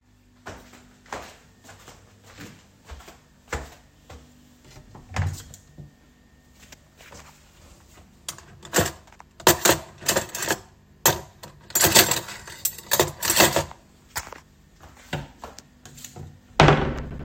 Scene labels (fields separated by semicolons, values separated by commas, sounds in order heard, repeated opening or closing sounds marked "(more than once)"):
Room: bedroom; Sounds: footsteps, wardrobe or drawer (more than once), cutlery and dishes